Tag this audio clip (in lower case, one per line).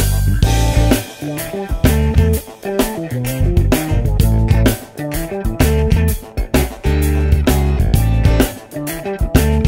music